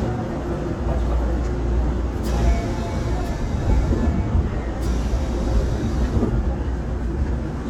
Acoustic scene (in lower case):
subway train